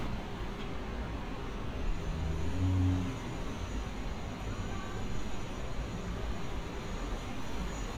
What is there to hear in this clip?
engine of unclear size